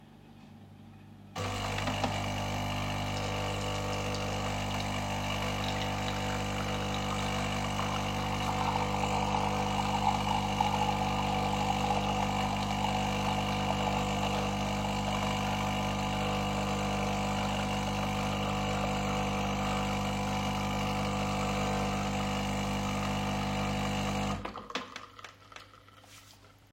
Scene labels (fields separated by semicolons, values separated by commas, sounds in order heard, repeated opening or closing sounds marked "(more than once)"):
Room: kitchen; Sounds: coffee machine